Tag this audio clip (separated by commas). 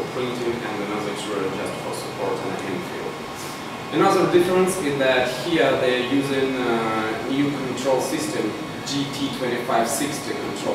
Printer, Speech